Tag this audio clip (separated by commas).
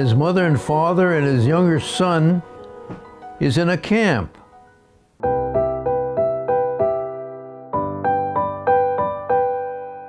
Electric piano